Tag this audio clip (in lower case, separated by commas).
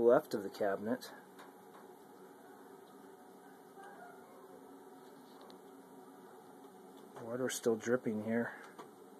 speech, inside a small room